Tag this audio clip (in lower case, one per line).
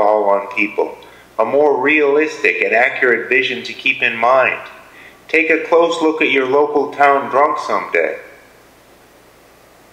speech